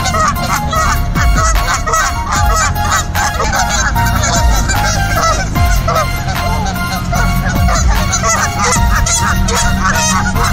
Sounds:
goose honking

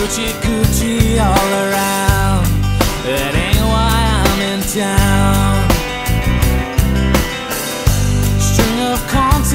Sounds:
exciting music, music

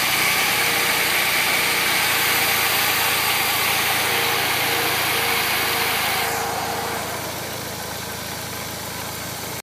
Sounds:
engine, medium engine (mid frequency)

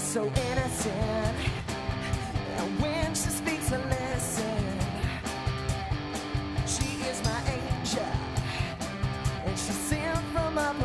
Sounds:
music

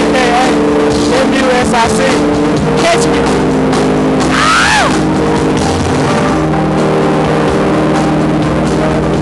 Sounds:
speech, jazz, music

